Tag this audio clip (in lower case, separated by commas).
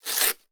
tearing